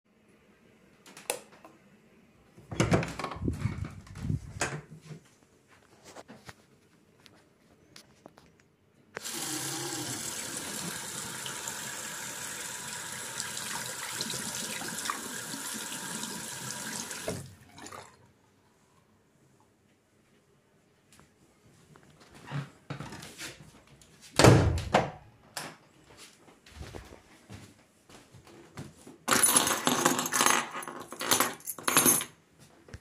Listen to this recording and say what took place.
I turn on the light. open the door and enter the bathroom. I open the tap water to check how hot it is coming. As it is still cold, I walk out and search for my keys to go out.